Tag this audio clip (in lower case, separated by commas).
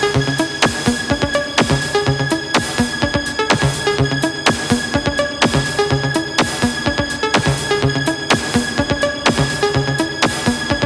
music